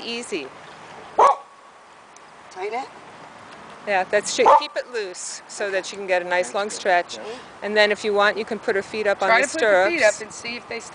Two women talking and dog barking